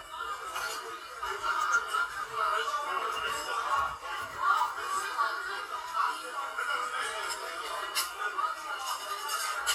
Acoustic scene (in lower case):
crowded indoor space